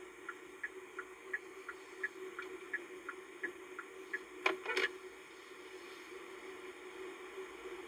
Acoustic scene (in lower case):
car